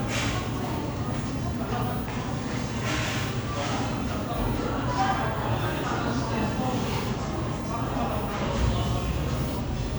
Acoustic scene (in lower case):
crowded indoor space